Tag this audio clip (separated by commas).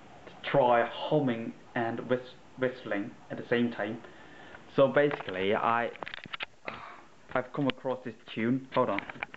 Speech